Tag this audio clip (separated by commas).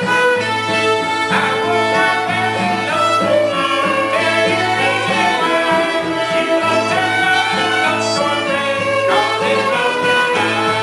Musical instrument, Music, Pizzicato, Violin